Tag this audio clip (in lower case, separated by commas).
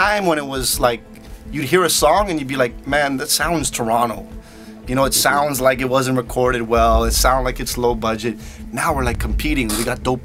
speech, music